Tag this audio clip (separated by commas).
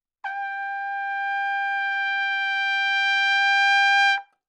Musical instrument, Trumpet, Music, Brass instrument